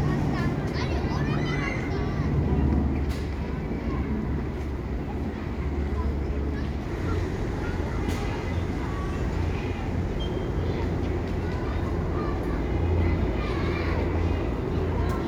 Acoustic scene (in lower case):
residential area